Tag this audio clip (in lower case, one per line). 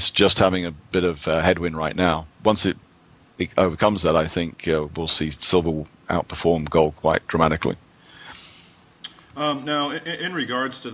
speech